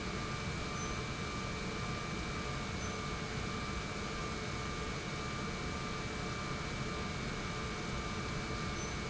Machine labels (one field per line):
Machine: pump